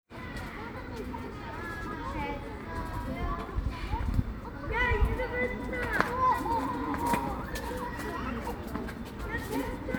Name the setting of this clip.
park